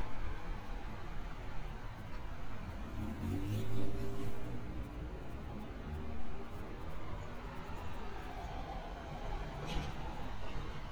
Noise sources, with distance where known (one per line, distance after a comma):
engine of unclear size, near